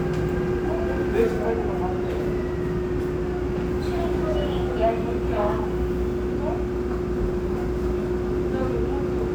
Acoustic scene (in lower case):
subway train